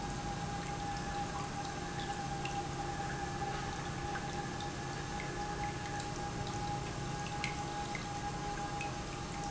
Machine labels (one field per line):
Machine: pump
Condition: normal